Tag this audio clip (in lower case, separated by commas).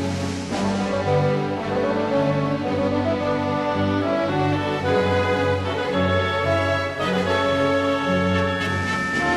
music